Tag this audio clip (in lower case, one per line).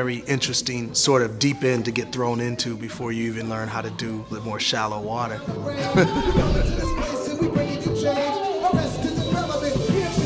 music
speech
monologue
man speaking